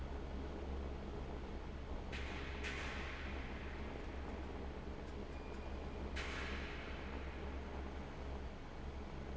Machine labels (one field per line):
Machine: fan